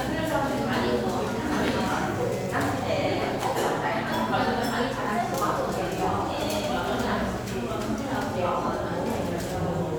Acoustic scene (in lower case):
cafe